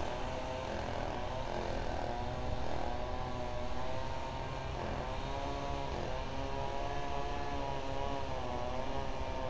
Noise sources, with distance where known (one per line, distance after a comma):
chainsaw, far